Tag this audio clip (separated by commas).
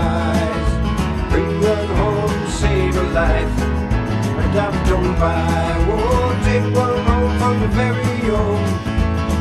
Music